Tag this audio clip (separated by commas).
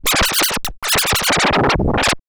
Musical instrument, Music, Scratching (performance technique)